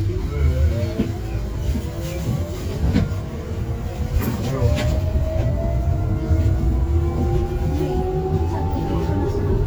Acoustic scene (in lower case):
bus